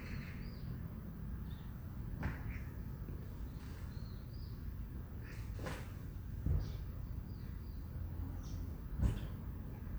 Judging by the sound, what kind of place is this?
residential area